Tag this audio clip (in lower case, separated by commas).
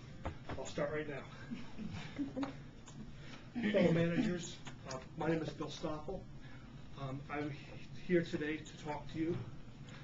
speech, man speaking, monologue